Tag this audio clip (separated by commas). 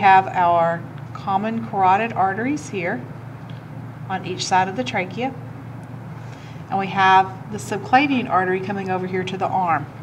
Speech